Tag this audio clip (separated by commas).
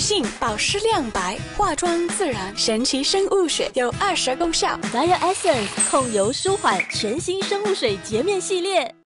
Speech, Music